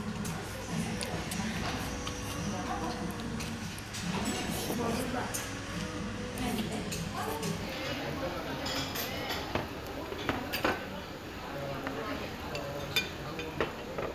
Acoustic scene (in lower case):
restaurant